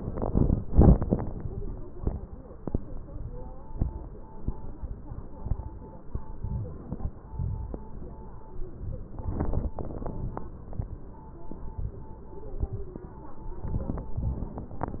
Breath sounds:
Inhalation: 6.40-7.01 s
Exhalation: 7.32-7.92 s

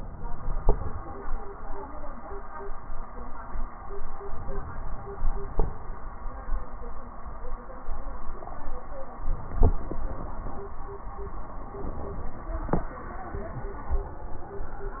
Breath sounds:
Inhalation: 4.23-5.73 s

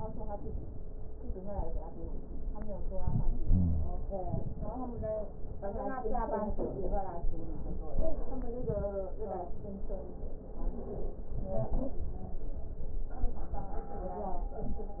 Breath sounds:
Inhalation: 2.92-4.01 s
Wheeze: 3.46-4.01 s

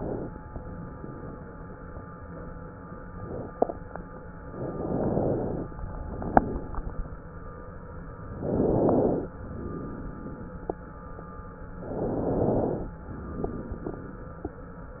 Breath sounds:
Inhalation: 4.52-5.66 s, 8.27-9.41 s, 11.84-12.98 s
Exhalation: 5.73-6.93 s, 9.45-10.64 s, 12.98-14.17 s

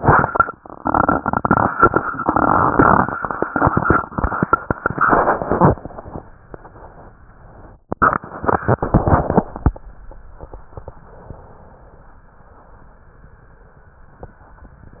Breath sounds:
Inhalation: 11.07-12.28 s, 14.97-15.00 s
Exhalation: 12.28-13.31 s

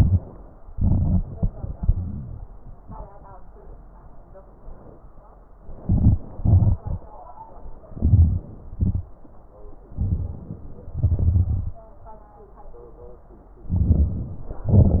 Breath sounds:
Inhalation: 0.73-1.46 s, 5.79-6.22 s, 7.90-8.46 s, 9.98-10.59 s, 13.66-14.49 s
Exhalation: 1.72-2.46 s, 6.38-6.98 s, 8.76-9.14 s, 10.92-11.75 s, 14.67-15.00 s
Crackles: 0.74-1.48 s, 7.90-8.46 s

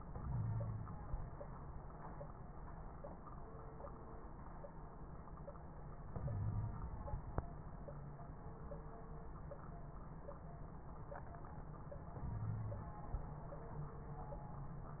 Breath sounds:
Inhalation: 0.18-0.99 s, 6.09-6.91 s, 12.22-12.94 s
Wheeze: 0.18-0.99 s, 6.20-6.79 s, 12.22-12.94 s

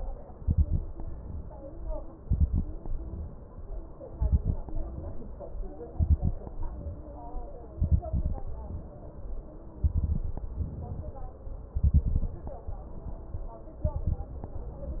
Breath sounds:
Inhalation: 0.34-0.83 s, 2.26-2.75 s, 4.12-4.62 s, 5.91-6.40 s, 7.79-8.44 s, 9.84-10.49 s, 11.78-12.43 s, 13.89-14.54 s
Crackles: 0.34-0.83 s, 2.26-2.75 s, 4.12-4.62 s, 5.91-6.40 s, 7.79-8.44 s, 9.84-10.49 s, 11.78-12.43 s, 13.89-14.54 s

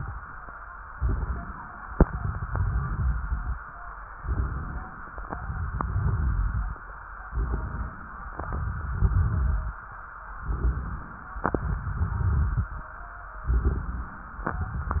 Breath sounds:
Inhalation: 0.91-1.90 s, 4.19-5.26 s, 7.32-8.39 s, 10.38-11.44 s, 13.47-14.54 s
Exhalation: 2.01-3.53 s, 5.31-6.72 s, 8.44-9.75 s, 11.46-12.87 s
Crackles: 0.91-1.90 s, 2.01-3.53 s, 4.19-5.26 s, 5.31-6.72 s, 7.32-8.39 s, 8.44-9.75 s, 10.38-11.44 s, 13.47-14.54 s

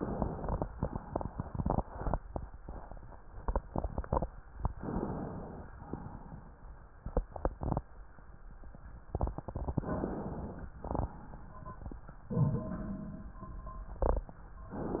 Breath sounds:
Inhalation: 4.82-5.75 s, 9.72-10.68 s
Exhalation: 5.75-6.61 s, 10.79-11.95 s

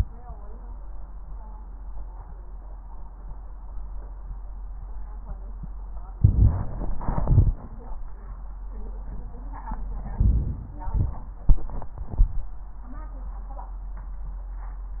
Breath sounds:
Inhalation: 6.17-7.01 s, 10.14-10.82 s
Exhalation: 7.02-7.65 s, 10.85-11.53 s
Crackles: 6.17-7.01 s, 7.02-7.65 s, 10.14-10.82 s, 10.85-11.53 s

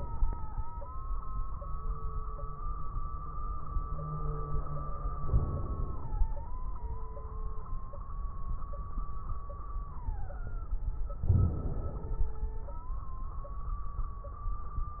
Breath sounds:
Inhalation: 5.22-6.29 s, 11.23-12.30 s
Crackles: 5.22-6.29 s, 11.23-12.30 s

